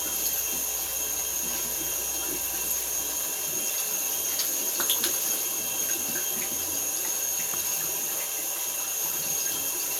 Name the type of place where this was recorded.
restroom